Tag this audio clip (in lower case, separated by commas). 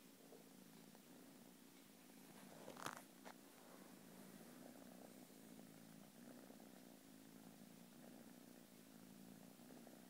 cat, domestic animals, purr, animal